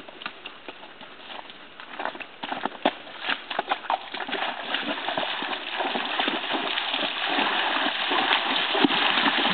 Something is walking into water and the water begins to splash